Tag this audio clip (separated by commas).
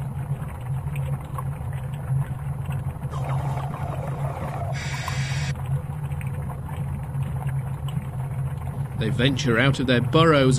Speech